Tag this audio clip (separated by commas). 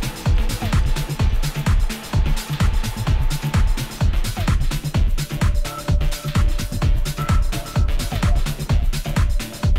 Music